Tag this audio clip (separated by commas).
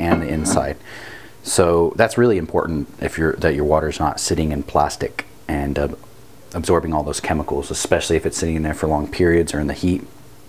Speech